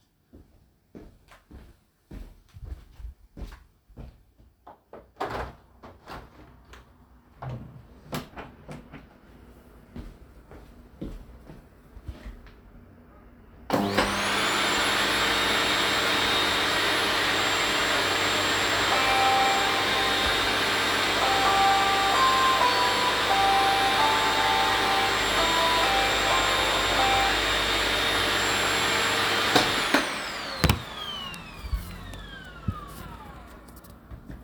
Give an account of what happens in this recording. I walk up to the window, open the window, walk to the vacuum, turn on the vacuum, and then the phone starts ringing, the vacuum is running for a bit while the phone is ringing, the phone call stops and I turn off the vacuum.